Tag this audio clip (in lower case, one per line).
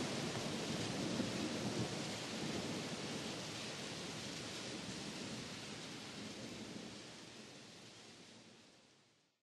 rain